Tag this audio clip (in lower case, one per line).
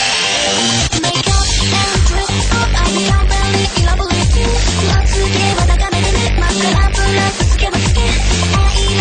music